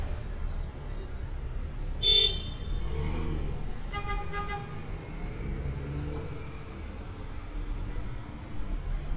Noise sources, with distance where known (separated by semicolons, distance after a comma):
medium-sounding engine, near; car horn, near